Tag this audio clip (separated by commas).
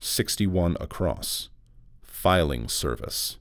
Human voice, Speech, Male speech